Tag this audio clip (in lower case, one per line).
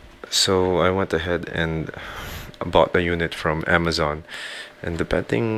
speech